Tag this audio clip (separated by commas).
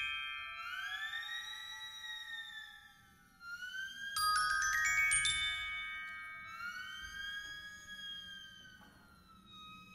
Marimba, Mallet percussion, Glockenspiel